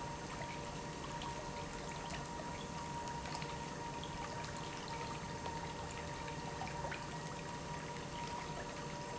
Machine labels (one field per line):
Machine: pump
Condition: normal